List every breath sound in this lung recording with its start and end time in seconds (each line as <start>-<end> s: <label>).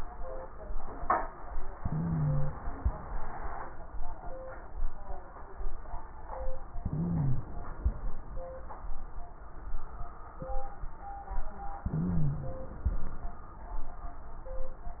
1.74-2.54 s: wheeze
1.74-2.74 s: inhalation
6.82-7.77 s: inhalation
6.84-7.48 s: wheeze
11.85-12.70 s: wheeze
11.85-12.88 s: inhalation